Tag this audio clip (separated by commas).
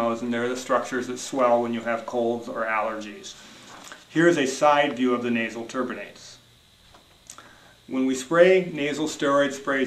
Speech